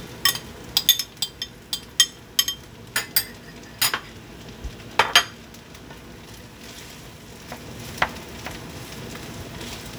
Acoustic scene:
kitchen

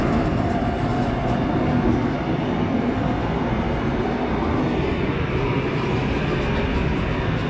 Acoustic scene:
subway train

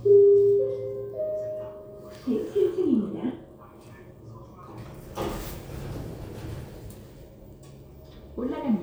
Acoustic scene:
elevator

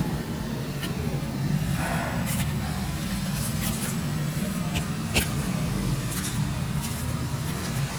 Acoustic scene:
residential area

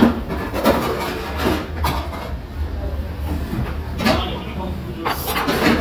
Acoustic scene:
restaurant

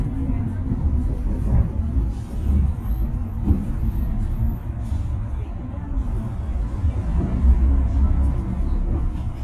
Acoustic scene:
bus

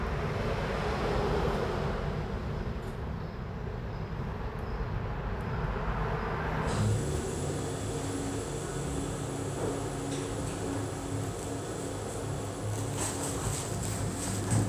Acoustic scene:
elevator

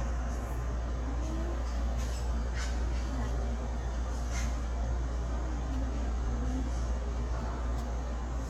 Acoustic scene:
subway station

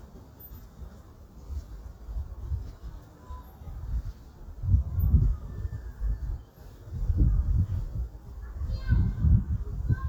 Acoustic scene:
park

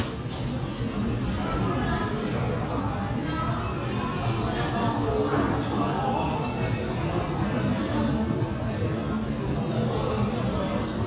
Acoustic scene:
crowded indoor space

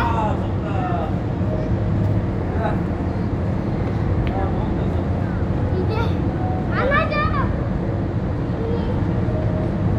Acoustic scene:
park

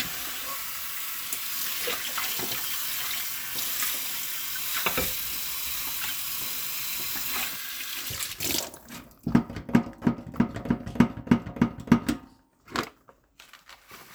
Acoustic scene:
kitchen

